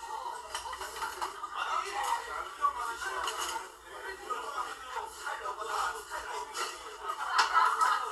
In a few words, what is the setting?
crowded indoor space